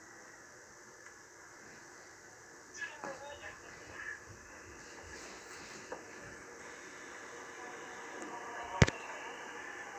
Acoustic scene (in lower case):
subway train